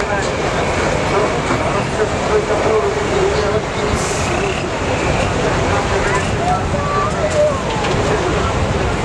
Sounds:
Truck, Vehicle, Speech

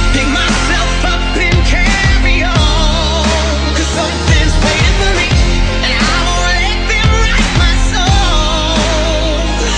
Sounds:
Music

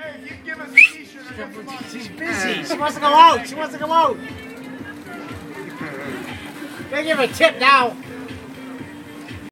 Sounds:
Music, Speech

